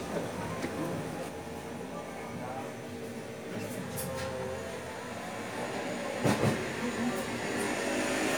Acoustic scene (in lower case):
cafe